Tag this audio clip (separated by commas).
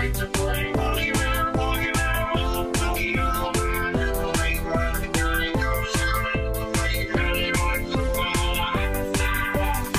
Music